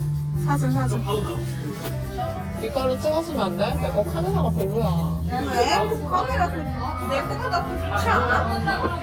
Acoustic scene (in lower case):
crowded indoor space